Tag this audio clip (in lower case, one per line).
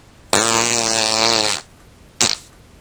fart